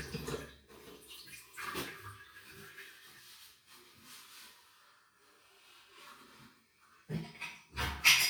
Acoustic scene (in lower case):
restroom